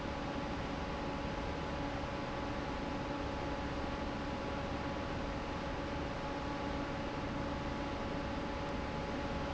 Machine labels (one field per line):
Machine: fan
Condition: normal